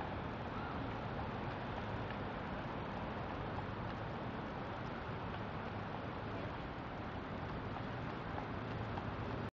Hooves walking in the distance